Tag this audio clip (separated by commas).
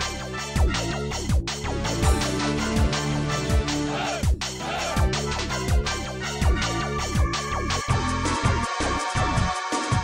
Music